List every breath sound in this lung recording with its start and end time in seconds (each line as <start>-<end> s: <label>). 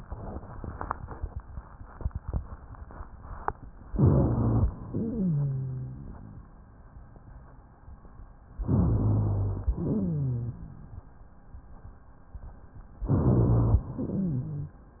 3.91-4.76 s: inhalation
3.91-4.76 s: rhonchi
4.86-6.53 s: exhalation
4.86-6.53 s: wheeze
8.65-9.75 s: inhalation
8.65-9.75 s: rhonchi
9.75-11.03 s: exhalation
9.75-11.03 s: wheeze
13.07-13.91 s: inhalation
13.07-13.91 s: rhonchi
13.93-14.89 s: exhalation
13.93-14.89 s: wheeze